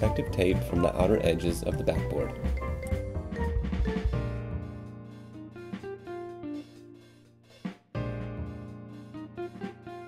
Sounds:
Speech, Music

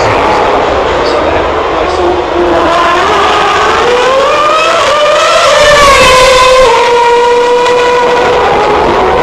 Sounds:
outside, urban or man-made, Vehicle, Speech

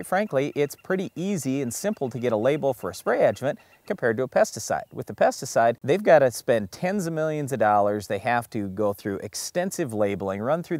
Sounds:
Speech

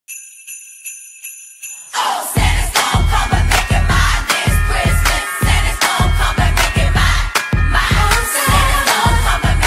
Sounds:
Jingle bell

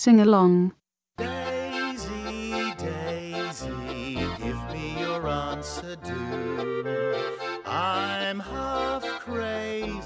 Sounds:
Music, Speech

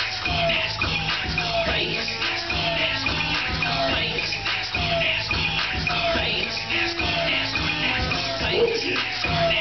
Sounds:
Music

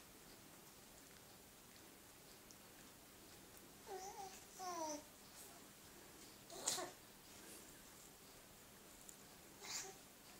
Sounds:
baby babbling

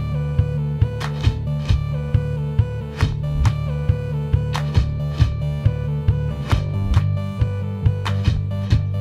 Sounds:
Music

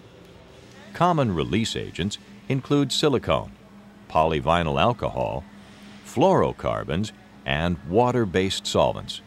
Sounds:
Speech

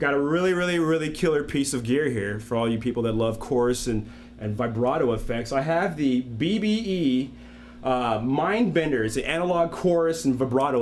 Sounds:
Speech

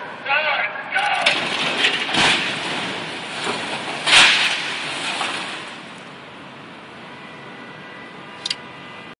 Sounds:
Speech

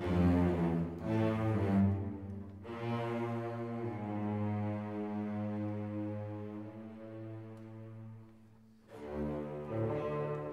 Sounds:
Music

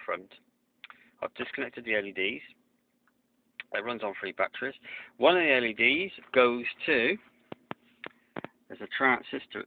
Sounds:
Speech

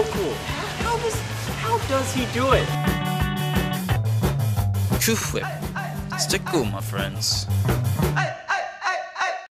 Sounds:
Speech, Music

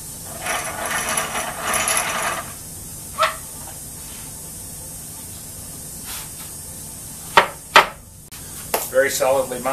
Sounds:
Speech

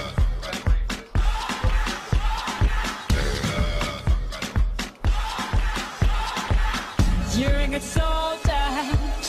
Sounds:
Music

